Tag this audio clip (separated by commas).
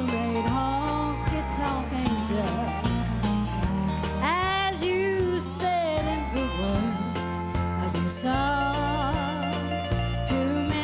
Music